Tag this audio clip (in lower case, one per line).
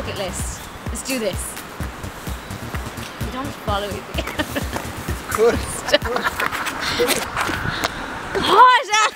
speech
music